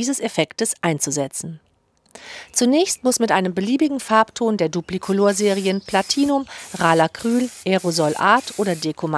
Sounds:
Speech

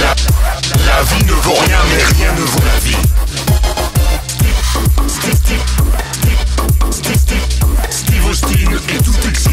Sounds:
Rock music, Music, Electronic dance music

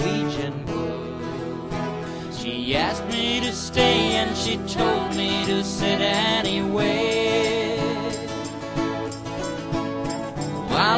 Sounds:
Music

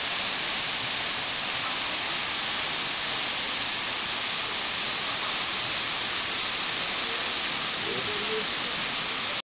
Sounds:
Speech

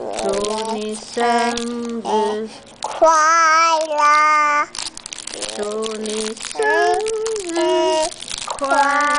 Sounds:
Female singing, Child singing

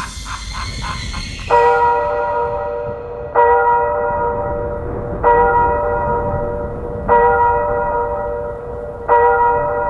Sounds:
Sound effect, Music

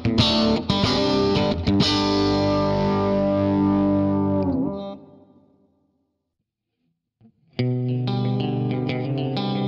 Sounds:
Music

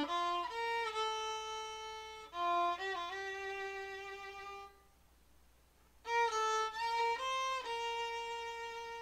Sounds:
Musical instrument, Music, Violin

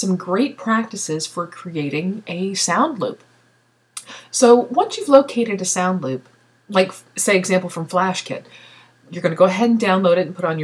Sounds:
Speech

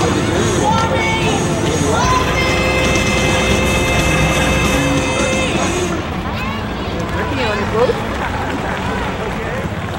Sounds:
speech babble, Speech, outside, urban or man-made, Music

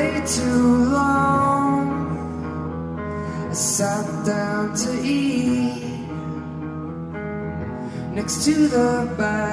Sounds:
Music

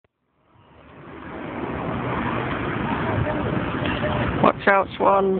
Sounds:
Speech, Vehicle

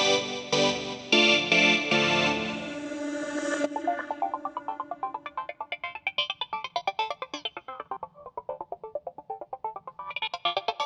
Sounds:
Sound effect

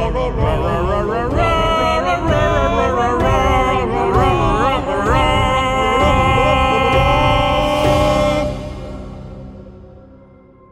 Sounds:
Music

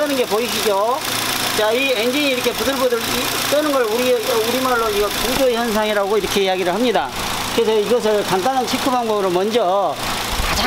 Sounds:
car engine idling

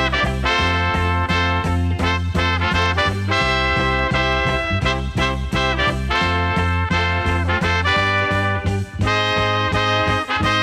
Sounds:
Music

